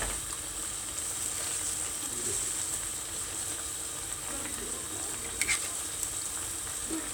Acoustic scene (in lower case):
kitchen